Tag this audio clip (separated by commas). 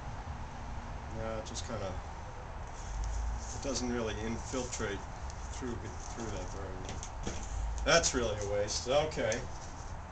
Speech